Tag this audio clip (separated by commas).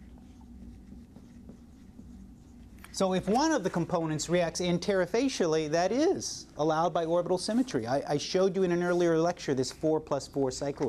Speech, Writing